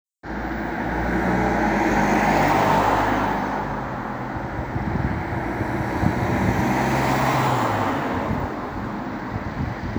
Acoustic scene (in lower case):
street